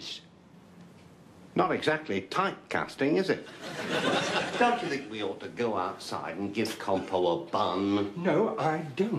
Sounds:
Speech

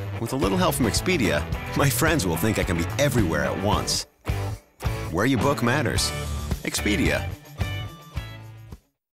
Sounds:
Music, Speech

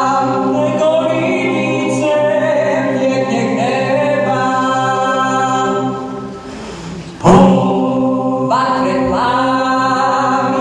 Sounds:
A capella, Choir, Music

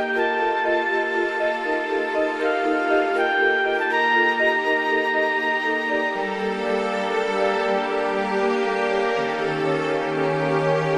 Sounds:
Music

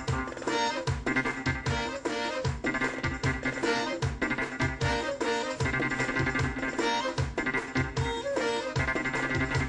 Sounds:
Music

